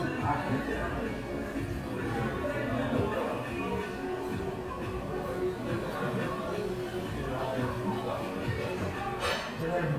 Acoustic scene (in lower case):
crowded indoor space